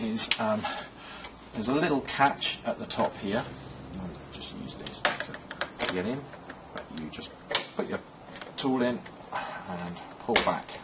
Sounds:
Speech

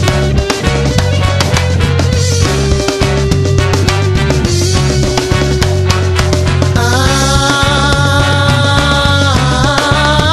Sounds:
Music, Ska

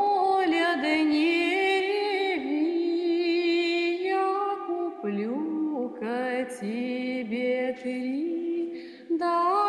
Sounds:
Lullaby, Music

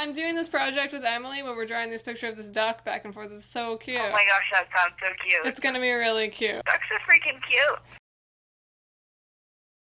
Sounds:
Speech

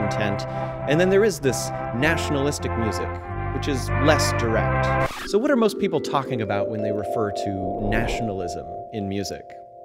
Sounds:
Music, Speech

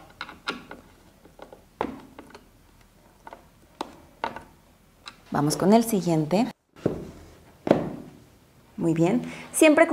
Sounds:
Speech

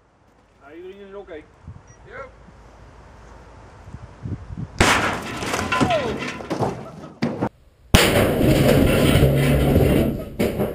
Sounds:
Speech

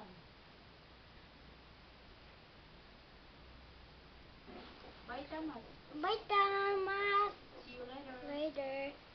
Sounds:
Child speech

